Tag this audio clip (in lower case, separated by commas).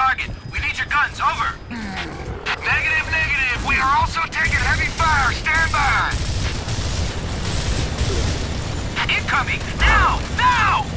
speech